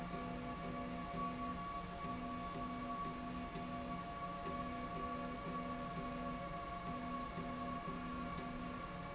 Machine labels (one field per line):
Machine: slide rail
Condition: normal